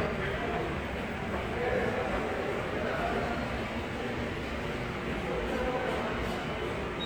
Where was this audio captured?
in a subway station